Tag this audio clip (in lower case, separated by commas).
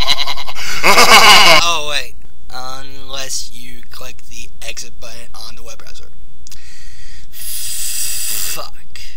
speech